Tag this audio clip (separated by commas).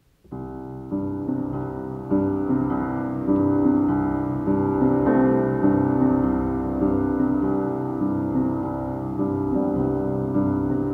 Music